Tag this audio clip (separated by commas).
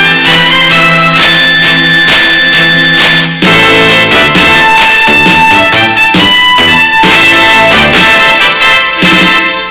Music